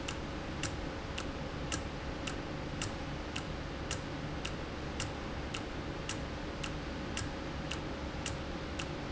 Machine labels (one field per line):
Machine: valve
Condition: normal